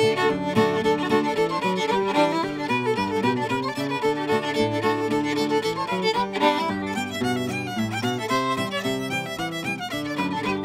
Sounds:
music

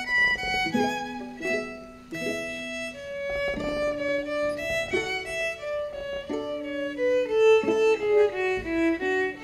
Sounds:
pizzicato
fiddle
bowed string instrument

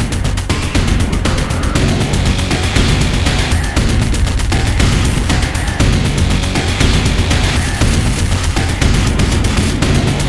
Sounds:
music

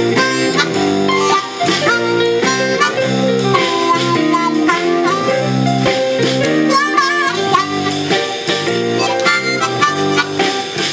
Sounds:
blues
music
harmonica

